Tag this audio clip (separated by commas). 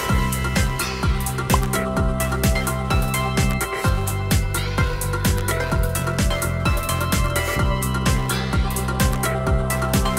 Music